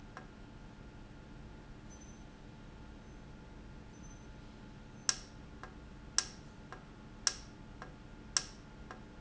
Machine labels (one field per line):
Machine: valve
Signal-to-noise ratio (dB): 6 dB